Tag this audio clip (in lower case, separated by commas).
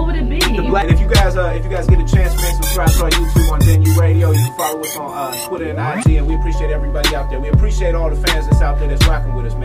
music